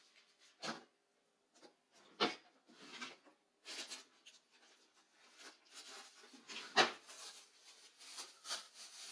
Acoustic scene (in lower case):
kitchen